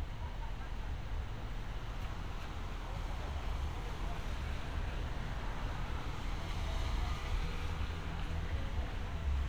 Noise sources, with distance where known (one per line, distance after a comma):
person or small group talking, far